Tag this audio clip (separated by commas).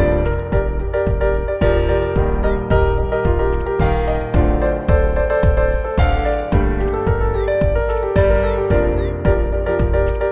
Music